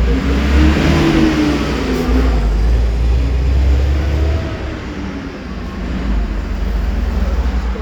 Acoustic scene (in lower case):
street